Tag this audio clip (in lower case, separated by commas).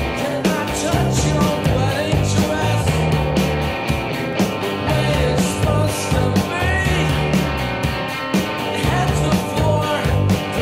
music